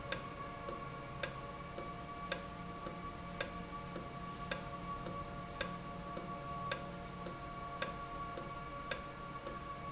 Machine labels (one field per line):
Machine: valve